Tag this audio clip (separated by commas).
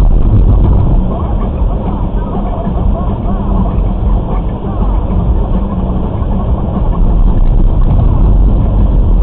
Speech